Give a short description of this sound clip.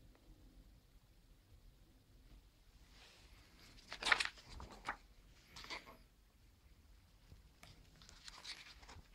The sound of a page turning is heard